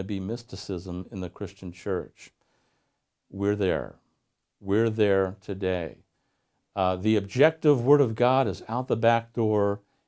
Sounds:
Speech

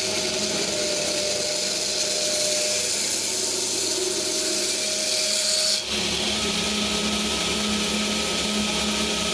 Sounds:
Tools

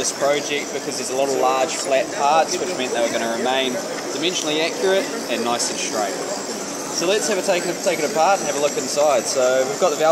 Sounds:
Speech

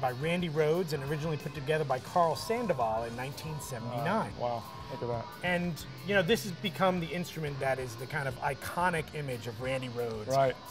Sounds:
Musical instrument, Plucked string instrument, Guitar, Music, Strum, Speech

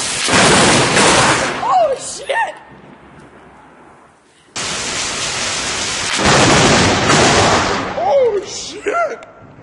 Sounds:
Thunderstorm, Speech

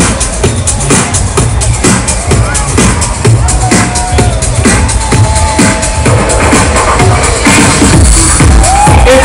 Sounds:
Techno, Speech, Music, Electronic music

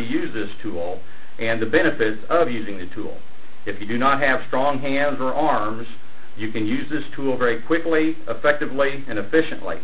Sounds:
Speech

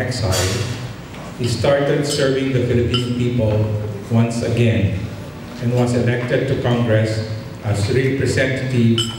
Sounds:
monologue, Speech, Male speech

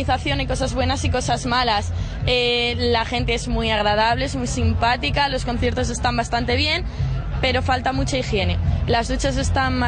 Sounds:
Speech

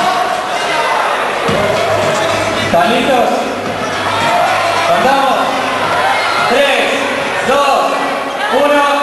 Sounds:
Speech, Crowd, Music

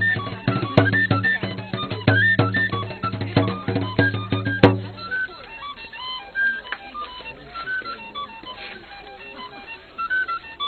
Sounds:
Drum, Music, Speech, Musical instrument

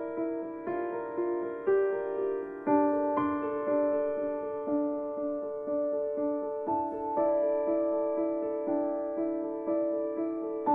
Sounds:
Music

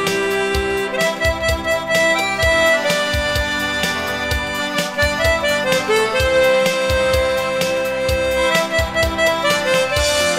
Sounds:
Country, Music

